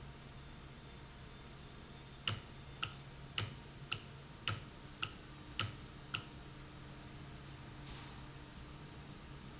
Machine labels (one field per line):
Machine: valve